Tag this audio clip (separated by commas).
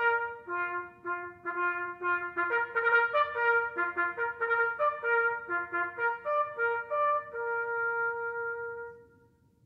playing bugle